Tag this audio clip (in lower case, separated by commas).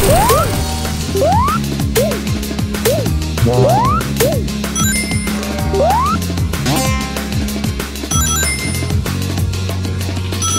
music